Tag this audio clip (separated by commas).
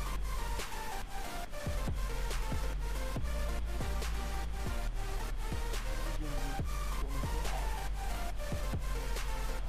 Music, Speech